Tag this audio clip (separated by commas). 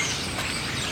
Wild animals, Animal, Bird